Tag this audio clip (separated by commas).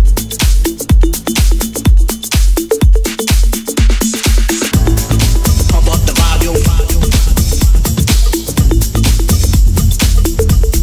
Music